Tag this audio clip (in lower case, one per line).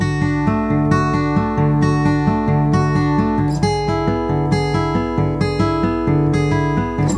plucked string instrument
music
guitar
acoustic guitar
musical instrument